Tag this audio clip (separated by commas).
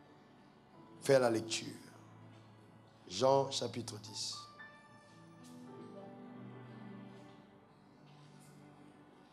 Speech